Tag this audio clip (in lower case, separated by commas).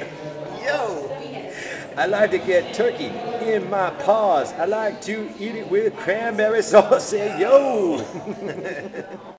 speech